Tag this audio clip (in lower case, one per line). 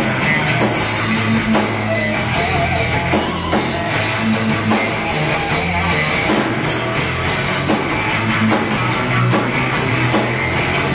rock music
music
heavy metal